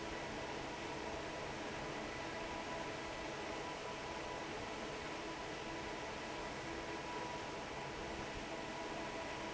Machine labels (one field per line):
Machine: fan